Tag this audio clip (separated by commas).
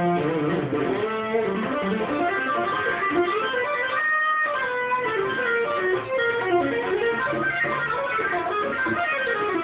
Bass guitar, Strum, Musical instrument, Plucked string instrument, Guitar, Music